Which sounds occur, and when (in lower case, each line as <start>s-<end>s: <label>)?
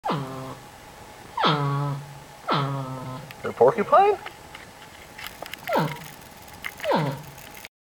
0.1s-7.8s: mechanisms
3.5s-4.2s: male speech
4.6s-4.6s: tick
6.8s-6.9s: generic impact sounds
6.8s-7.3s: animal